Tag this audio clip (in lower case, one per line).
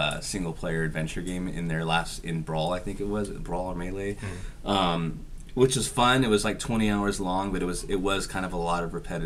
speech